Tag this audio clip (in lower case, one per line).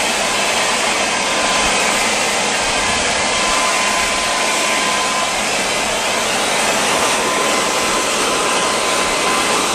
vacuum cleaner